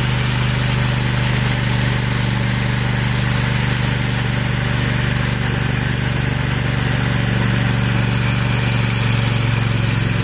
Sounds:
outside, urban or man-made, engine, vibration

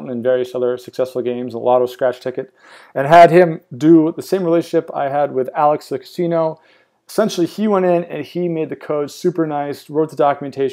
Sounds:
speech

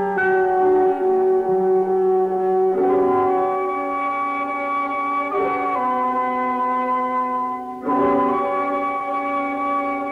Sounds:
music

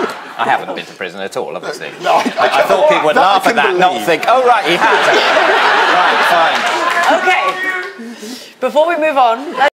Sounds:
speech

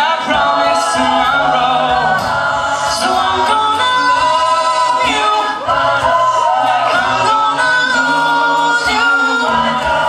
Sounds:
choir, inside a large room or hall, singing

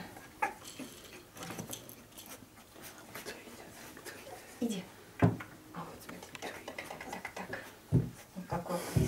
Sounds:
speech, animal

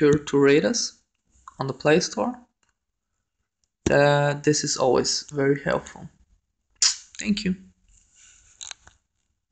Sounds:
speech

